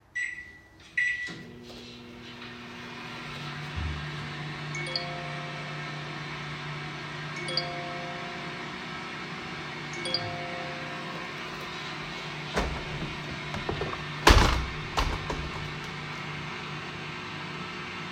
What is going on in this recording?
I started microwave received notification 3 times and closed the window